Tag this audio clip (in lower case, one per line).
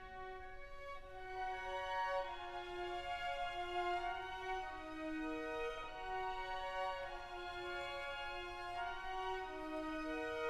music
fiddle
musical instrument